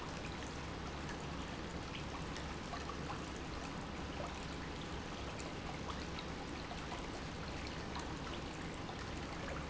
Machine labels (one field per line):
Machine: pump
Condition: normal